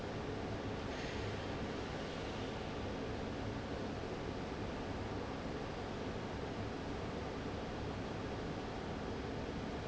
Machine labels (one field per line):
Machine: fan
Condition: abnormal